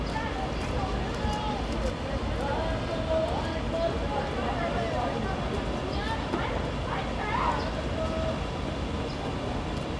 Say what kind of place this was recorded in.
residential area